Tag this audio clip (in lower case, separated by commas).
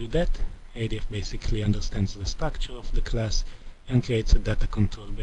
speech